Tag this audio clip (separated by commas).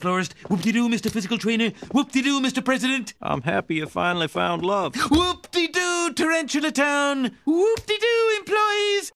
Speech